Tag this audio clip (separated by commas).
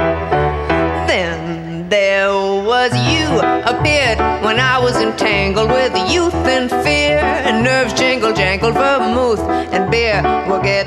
Music